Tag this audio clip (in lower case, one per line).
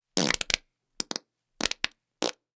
fart